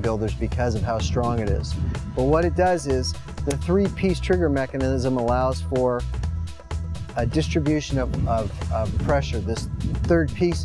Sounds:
speech, music

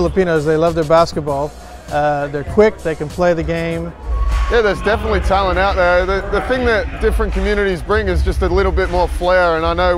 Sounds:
speech, music

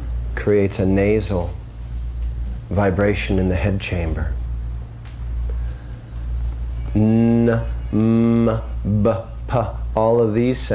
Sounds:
speech, mantra

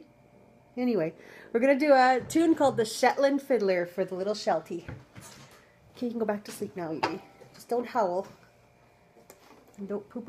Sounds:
speech

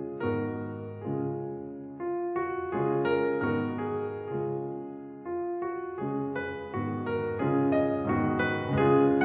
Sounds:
music

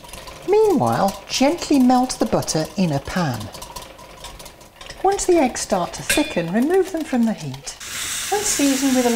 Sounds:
stir, sizzle

